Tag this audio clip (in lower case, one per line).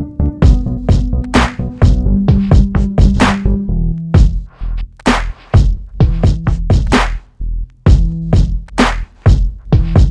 sampler